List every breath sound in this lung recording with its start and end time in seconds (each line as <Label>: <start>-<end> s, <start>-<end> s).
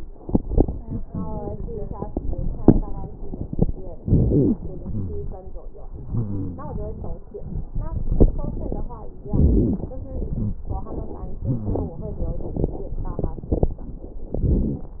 Inhalation: 3.98-4.61 s, 9.20-9.84 s, 14.31-15.00 s
Wheeze: 4.85-5.48 s, 6.09-6.73 s, 10.25-10.60 s, 11.41-12.00 s
Crackles: 3.98-4.61 s, 9.20-9.84 s, 14.31-15.00 s